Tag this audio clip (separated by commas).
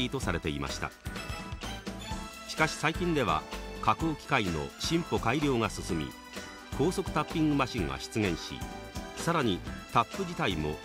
Speech, Music